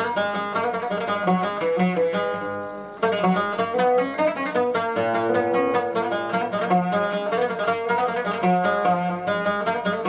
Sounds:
musical instrument, string section, music

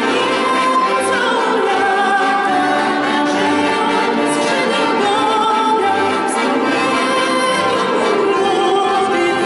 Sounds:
music, musical instrument, accordion

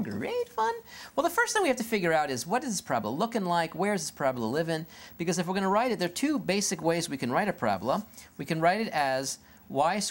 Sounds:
speech

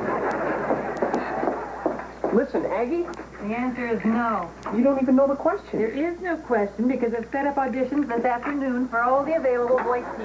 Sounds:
speech

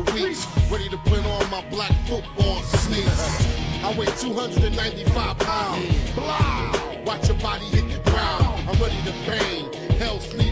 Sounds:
music

